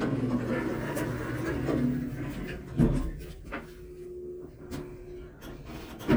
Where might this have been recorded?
in an elevator